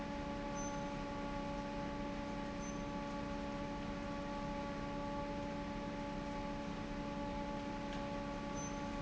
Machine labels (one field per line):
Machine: fan